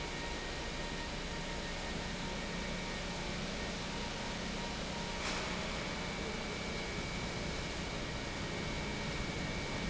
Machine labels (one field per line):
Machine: pump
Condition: normal